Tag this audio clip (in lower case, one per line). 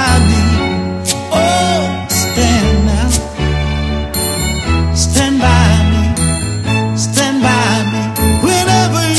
jingle (music)